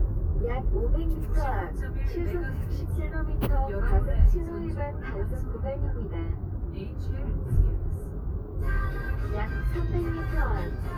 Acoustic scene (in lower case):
car